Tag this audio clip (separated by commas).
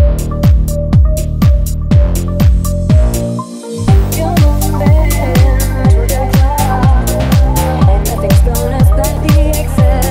Music, Dance music